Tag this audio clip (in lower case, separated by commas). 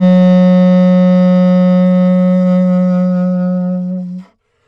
music, musical instrument, woodwind instrument